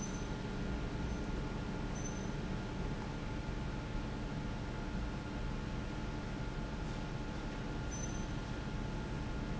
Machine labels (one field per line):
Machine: pump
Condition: abnormal